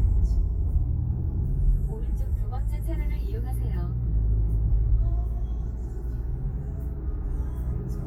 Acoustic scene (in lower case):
car